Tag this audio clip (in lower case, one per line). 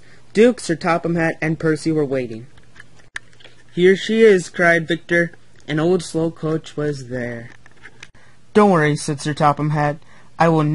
speech